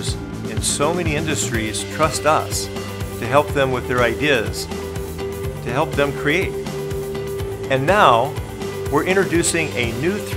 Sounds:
speech
music

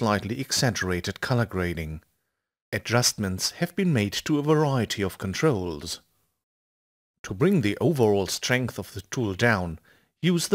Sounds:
speech

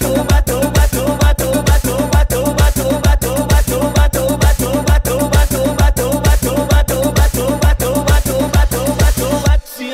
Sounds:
music

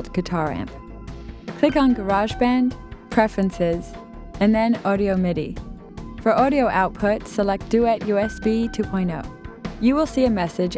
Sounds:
speech
music

